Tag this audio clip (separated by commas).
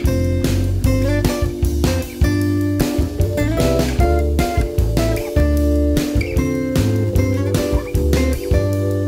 Exciting music, Music